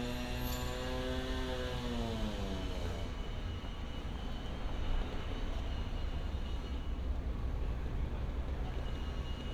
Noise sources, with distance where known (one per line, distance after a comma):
rock drill